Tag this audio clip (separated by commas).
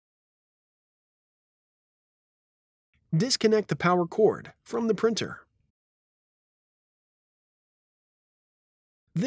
Speech